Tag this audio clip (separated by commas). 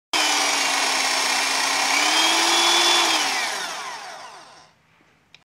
Vehicle